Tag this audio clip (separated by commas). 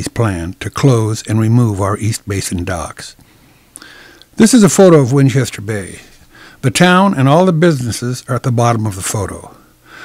Speech, Narration